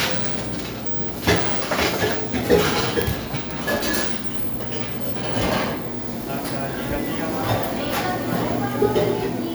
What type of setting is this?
cafe